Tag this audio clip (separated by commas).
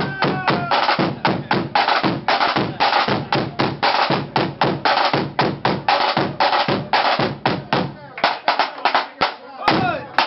Music, Drum, Speech